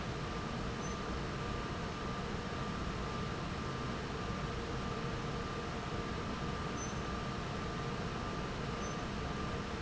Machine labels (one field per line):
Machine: fan